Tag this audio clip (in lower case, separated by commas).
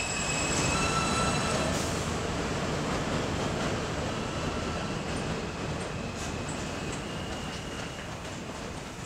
outside, urban or man-made